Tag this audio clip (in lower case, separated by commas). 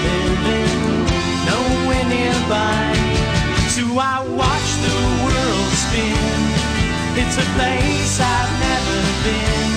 music